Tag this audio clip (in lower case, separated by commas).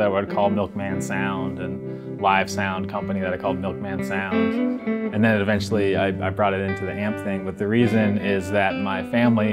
speech, music